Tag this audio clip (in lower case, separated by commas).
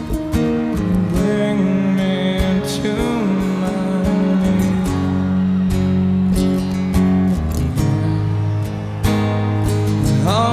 music